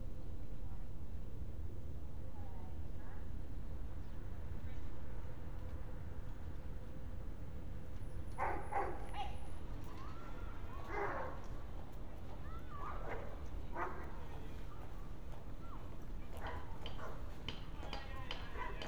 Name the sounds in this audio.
person or small group shouting, dog barking or whining